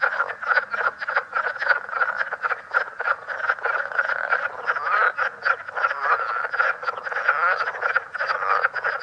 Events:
0.0s-9.0s: croak
0.0s-9.0s: wind

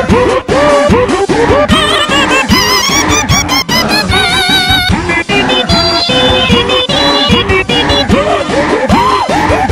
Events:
0.0s-9.7s: music

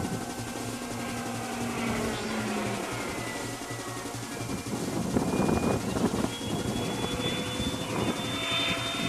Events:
0.0s-9.0s: music
1.7s-9.0s: jet engine
4.4s-6.3s: wind noise (microphone)
6.4s-8.1s: wind noise (microphone)

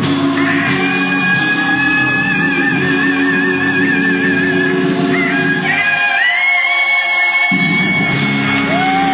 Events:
0.0s-9.1s: music
0.0s-9.1s: singing
8.5s-9.1s: cheering

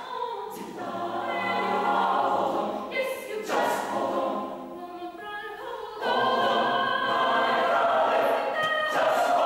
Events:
0.0s-0.6s: female singing
0.5s-2.9s: choir
1.2s-2.1s: female singing
2.9s-3.5s: female singing
3.4s-4.6s: choir
4.7s-7.7s: female singing
6.0s-8.5s: choir
8.5s-9.0s: female singing
8.9s-9.4s: choir

